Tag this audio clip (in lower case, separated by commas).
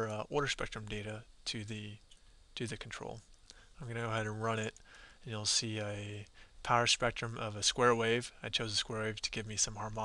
speech